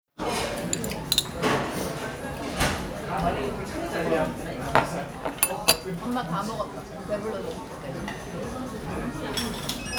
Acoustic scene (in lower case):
restaurant